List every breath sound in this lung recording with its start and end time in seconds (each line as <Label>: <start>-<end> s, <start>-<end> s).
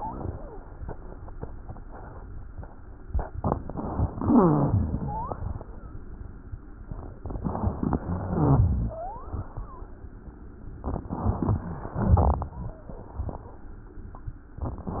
Inhalation: 3.43-4.14 s, 7.19-7.99 s, 11.08-11.97 s
Exhalation: 4.14-5.07 s, 8.01-9.03 s, 11.97-12.83 s
Wheeze: 0.00-0.59 s, 5.03-5.43 s, 8.88-9.34 s
Rhonchi: 4.19-5.01 s, 8.03-8.88 s
Crackles: 7.19-7.99 s, 11.97-12.83 s